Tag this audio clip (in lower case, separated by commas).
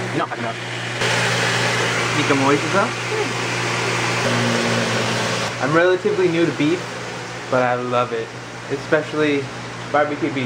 speech, inside a small room